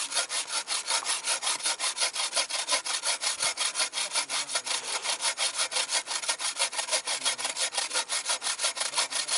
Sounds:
rub, sawing, wood

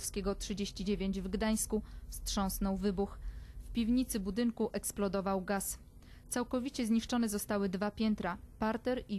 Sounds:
speech

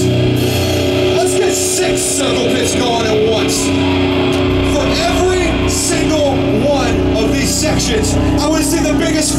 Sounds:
music, speech

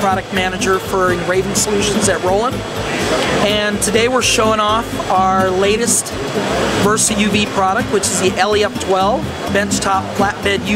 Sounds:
speech, music

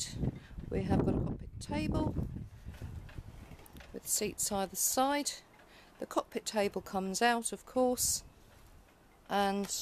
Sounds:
speech

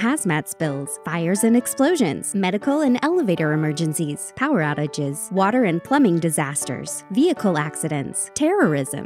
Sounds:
music, speech

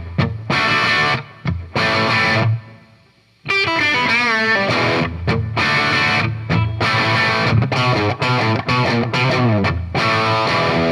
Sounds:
musical instrument, plucked string instrument, guitar, music

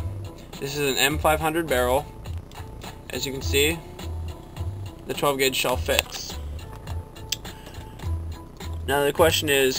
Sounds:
speech, music

